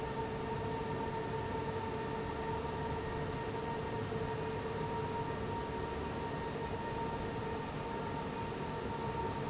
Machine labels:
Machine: fan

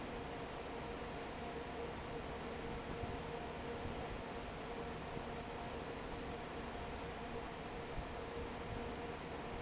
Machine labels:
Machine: fan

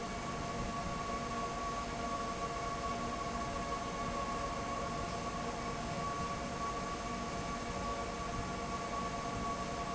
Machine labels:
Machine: fan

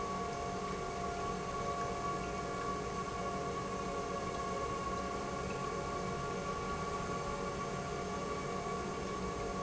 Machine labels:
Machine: pump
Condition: normal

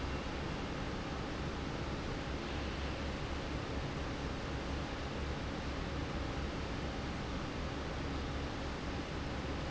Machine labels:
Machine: fan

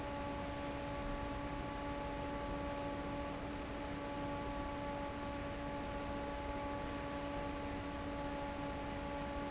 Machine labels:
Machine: fan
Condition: normal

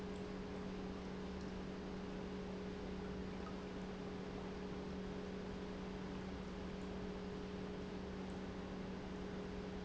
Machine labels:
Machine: pump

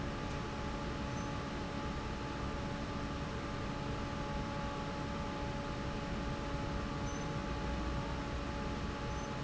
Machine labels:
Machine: fan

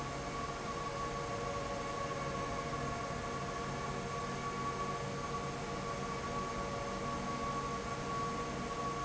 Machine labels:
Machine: fan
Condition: abnormal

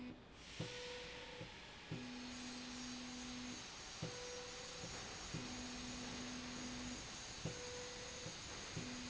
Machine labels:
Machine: slide rail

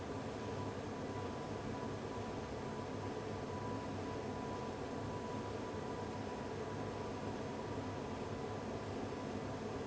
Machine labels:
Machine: fan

